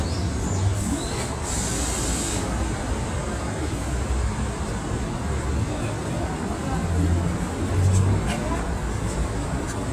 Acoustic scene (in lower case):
street